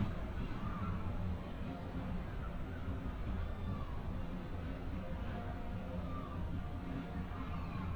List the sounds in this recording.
music from an unclear source, unidentified human voice